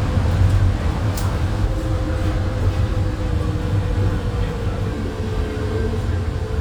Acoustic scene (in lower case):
bus